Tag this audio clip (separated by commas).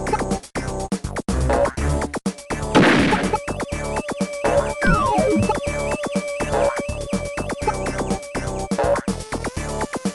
Video game music